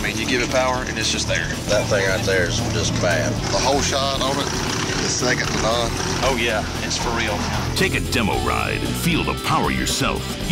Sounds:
speech, music

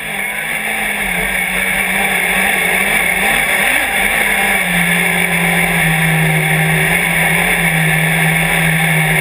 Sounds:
motor vehicle (road), car, vehicle

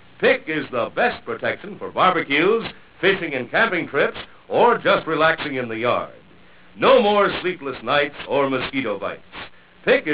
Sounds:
speech

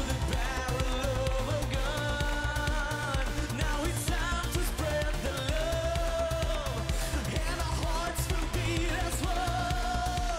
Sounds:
music

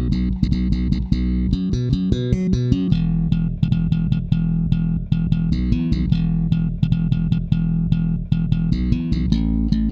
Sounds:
background music, soundtrack music, music

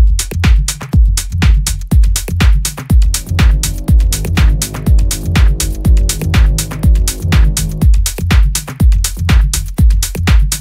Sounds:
disco, music, pop music

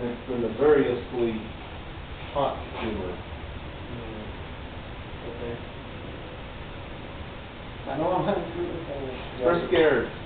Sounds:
speech

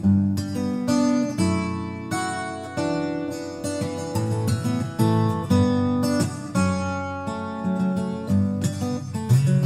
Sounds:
strum, music, plucked string instrument, musical instrument, guitar

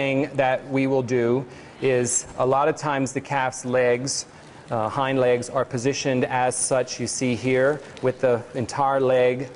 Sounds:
speech

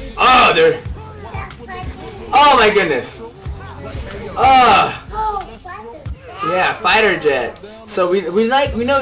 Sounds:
music, speech

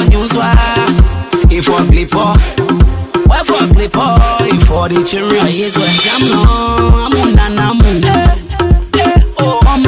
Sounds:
music, soundtrack music

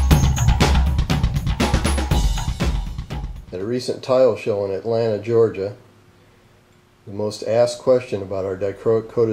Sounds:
bass drum, music, speech

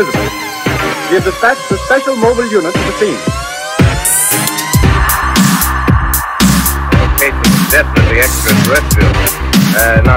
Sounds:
dubstep, music, electronic music, speech

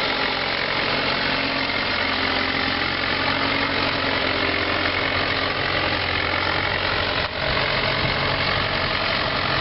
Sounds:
vehicle, motor vehicle (road)

